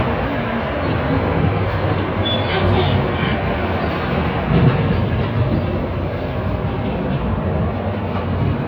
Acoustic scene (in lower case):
bus